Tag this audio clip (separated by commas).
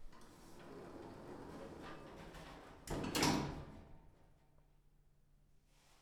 home sounds, Sliding door, Door